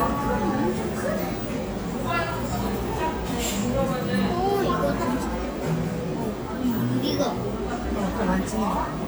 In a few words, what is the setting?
cafe